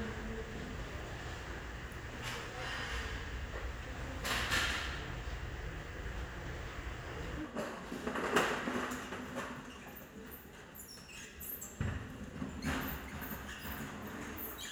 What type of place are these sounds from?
restaurant